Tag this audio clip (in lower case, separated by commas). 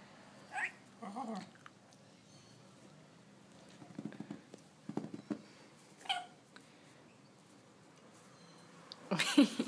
speech